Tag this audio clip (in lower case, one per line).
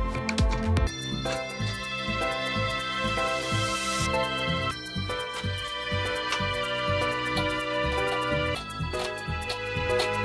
music